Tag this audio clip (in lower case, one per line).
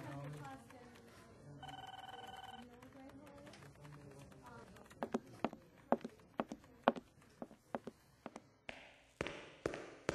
speech